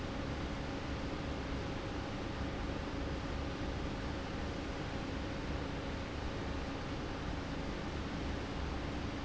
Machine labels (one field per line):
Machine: fan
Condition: abnormal